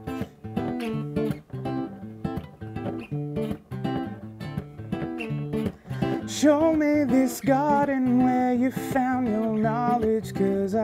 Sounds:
music, acoustic guitar, guitar, strum, plucked string instrument, musical instrument

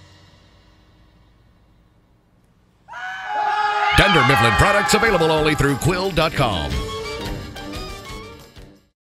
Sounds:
meow, speech, cat, animal, music, pets

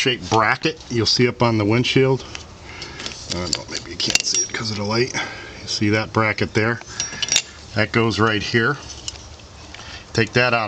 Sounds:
speech

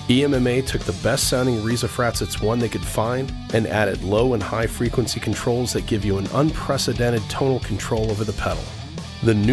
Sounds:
music, speech, heavy metal

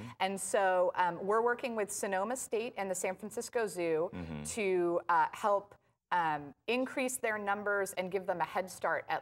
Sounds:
speech

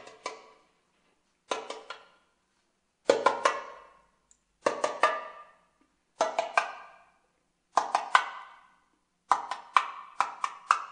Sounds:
percussion

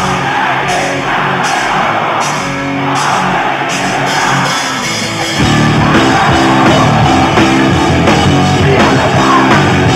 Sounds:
orchestra, music

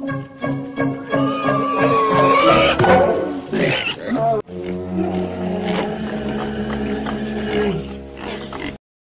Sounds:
music, oink

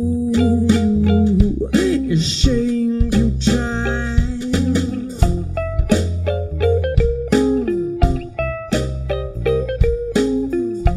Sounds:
bass guitar, inside a large room or hall, musical instrument, music

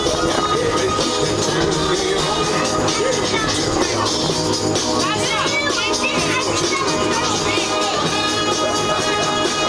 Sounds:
music, speech

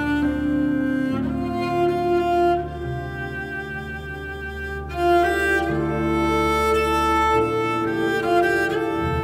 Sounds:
bowed string instrument, fiddle

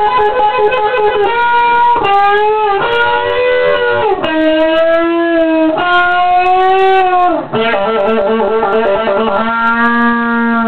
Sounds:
heavy metal, music

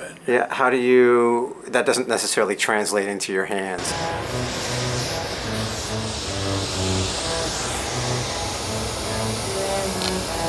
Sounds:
music, speech, inside a large room or hall

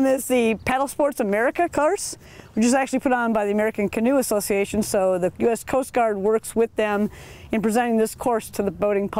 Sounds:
speech

